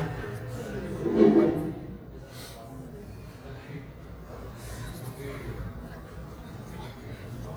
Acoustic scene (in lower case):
cafe